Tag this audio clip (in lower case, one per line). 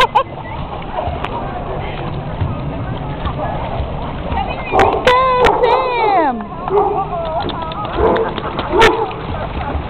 bow-wow
dog
domestic animals
yip
speech
animal